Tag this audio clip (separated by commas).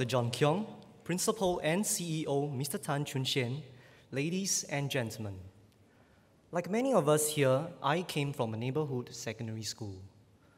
man speaking, Narration, Speech